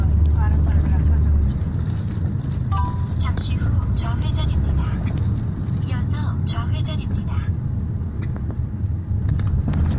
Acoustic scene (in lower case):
car